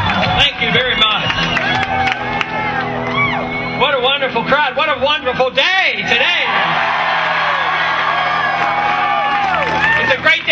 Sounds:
Speech, Music, Male speech, monologue

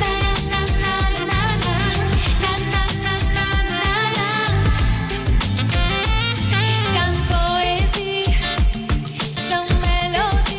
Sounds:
Music

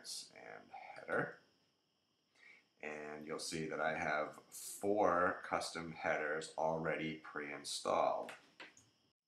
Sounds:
Speech

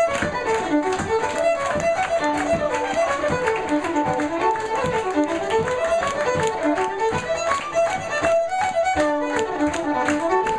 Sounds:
Musical instrument, Violin, Music

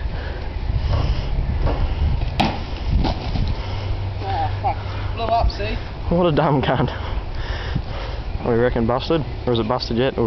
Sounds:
Speech

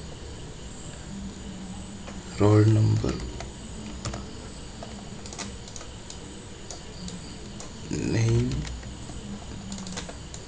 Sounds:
Typing

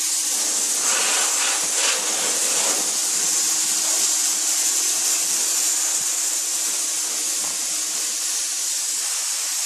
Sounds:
Wood

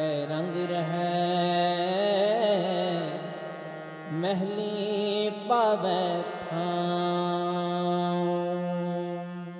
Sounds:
Music

